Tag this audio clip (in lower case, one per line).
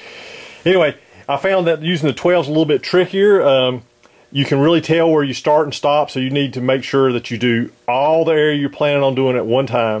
speech